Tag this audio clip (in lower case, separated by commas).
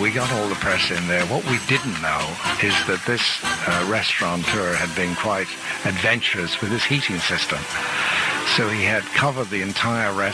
music, speech, radio